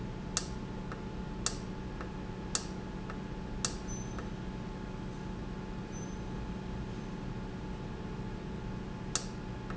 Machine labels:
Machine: valve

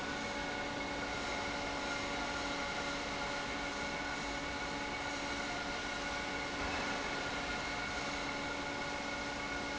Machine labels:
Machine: fan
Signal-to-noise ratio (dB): -6 dB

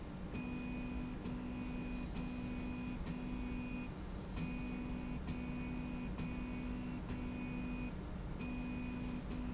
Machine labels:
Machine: slide rail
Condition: normal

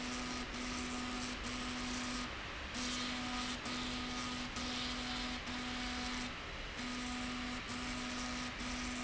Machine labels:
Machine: slide rail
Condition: abnormal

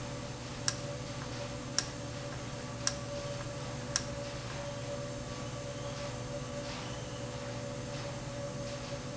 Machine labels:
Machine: valve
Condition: normal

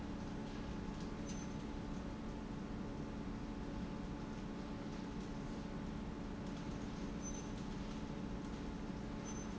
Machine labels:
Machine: pump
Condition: normal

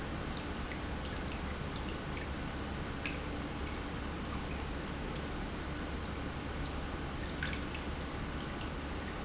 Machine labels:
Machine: pump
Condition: normal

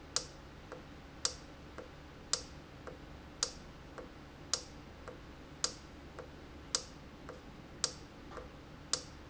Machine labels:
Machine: valve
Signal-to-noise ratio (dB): 6 dB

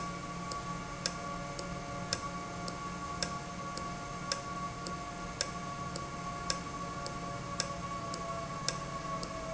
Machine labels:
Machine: valve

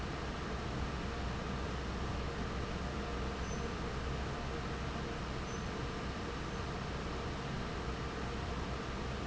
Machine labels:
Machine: fan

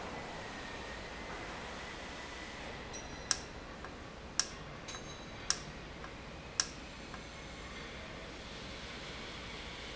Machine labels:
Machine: valve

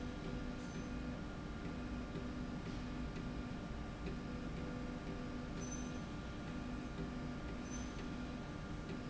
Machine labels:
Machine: slide rail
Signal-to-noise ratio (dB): 0 dB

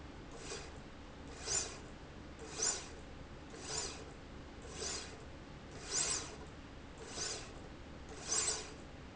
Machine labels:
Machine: slide rail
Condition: normal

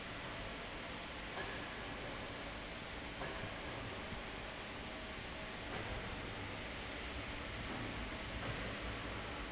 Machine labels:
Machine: fan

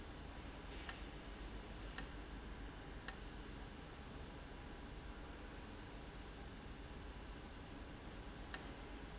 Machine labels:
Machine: valve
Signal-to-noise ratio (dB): 6 dB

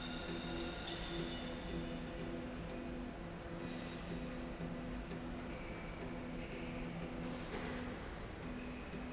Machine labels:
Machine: slide rail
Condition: normal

